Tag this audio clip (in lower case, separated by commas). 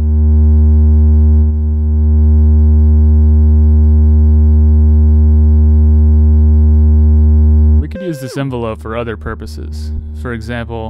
speech, synthesizer, playing synthesizer